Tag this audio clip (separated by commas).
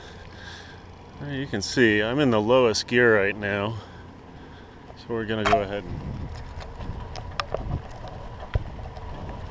Bicycle, Vehicle, Speech